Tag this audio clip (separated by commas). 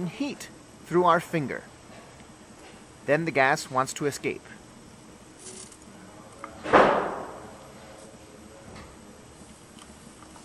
Speech